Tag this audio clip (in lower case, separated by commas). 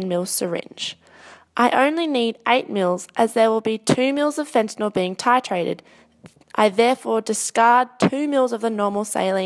speech